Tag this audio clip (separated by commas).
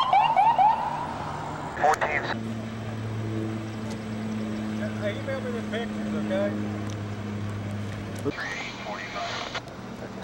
Speech, Car, outside, urban or man-made, Vehicle